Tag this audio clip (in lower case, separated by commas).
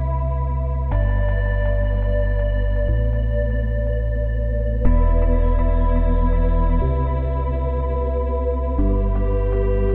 music